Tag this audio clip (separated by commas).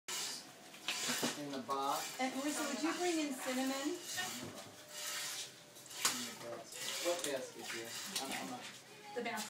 Speech